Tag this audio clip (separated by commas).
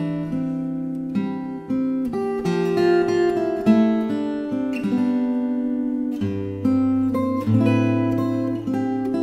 Acoustic guitar, Music, Plucked string instrument, Guitar, Musical instrument